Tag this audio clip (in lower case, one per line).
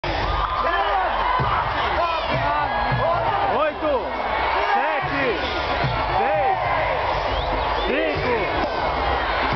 cheering
crowd